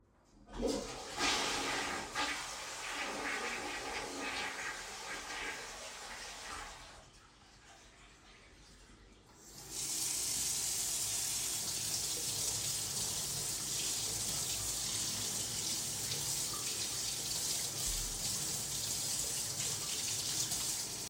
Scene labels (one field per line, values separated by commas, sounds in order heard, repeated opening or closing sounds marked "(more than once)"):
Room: bathroom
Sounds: toilet flushing, running water